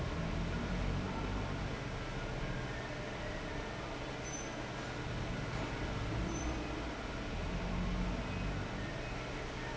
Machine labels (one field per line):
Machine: fan